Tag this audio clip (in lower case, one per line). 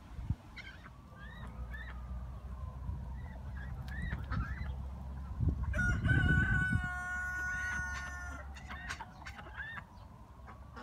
livestock